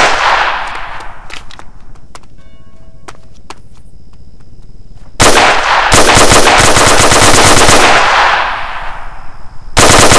A gunshot occurs, someone is running, a tower bell clangs, and a machine gun fires